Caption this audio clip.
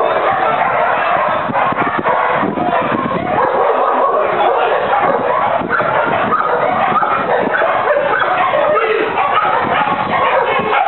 Many dogs barking, wind blowing